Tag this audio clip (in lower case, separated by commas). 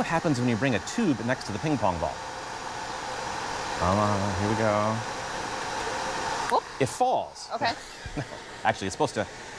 ping, speech